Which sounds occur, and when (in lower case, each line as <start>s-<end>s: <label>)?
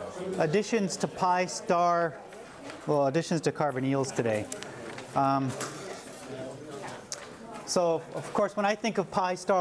0.0s-0.5s: human voice
0.0s-9.6s: background noise
0.3s-2.1s: man speaking
0.7s-0.9s: human voice
2.0s-2.8s: human voice
2.3s-2.4s: tick
2.6s-2.7s: tick
2.8s-4.4s: man speaking
3.6s-3.7s: tick
3.9s-5.1s: human voice
4.5s-4.6s: tick
4.9s-5.0s: tick
5.1s-5.4s: man speaking
5.4s-5.9s: human voice
5.5s-5.6s: generic impact sounds
6.2s-7.0s: human voice
7.1s-7.2s: tick
7.3s-7.6s: human voice
7.7s-8.0s: man speaking
8.1s-9.6s: man speaking